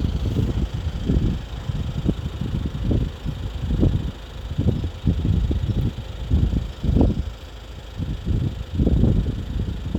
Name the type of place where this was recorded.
street